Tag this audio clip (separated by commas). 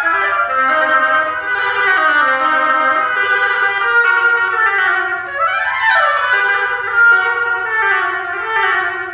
Musical instrument, Music